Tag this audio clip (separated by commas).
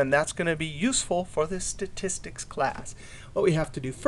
Speech